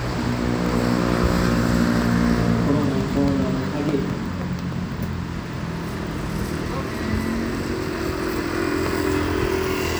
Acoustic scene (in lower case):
street